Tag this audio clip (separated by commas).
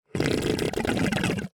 Water, Liquid, Gurgling